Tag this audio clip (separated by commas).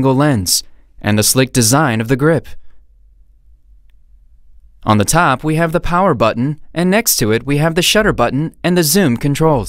Speech